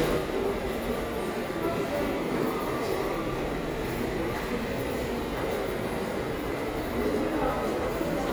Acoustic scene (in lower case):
subway station